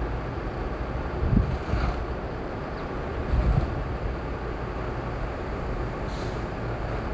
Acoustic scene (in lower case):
street